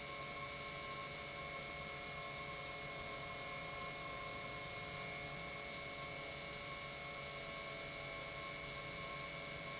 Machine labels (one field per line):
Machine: pump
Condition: normal